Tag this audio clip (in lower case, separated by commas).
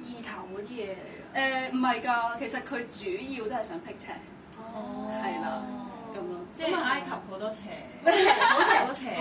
speech